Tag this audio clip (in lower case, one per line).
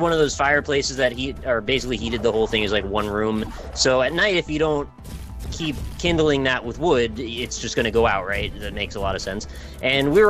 music
speech